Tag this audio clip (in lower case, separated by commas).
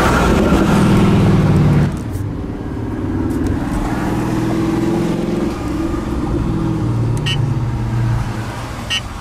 car, vehicle, outside, rural or natural